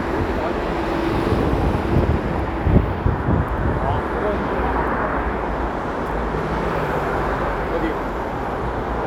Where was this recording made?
on a street